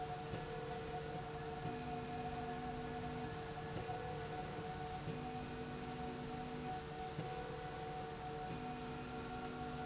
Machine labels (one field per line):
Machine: slide rail